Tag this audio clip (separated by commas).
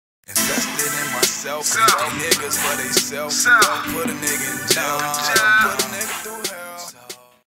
Music